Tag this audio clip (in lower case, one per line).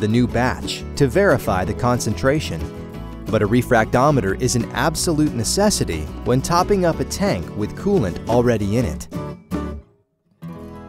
speech
music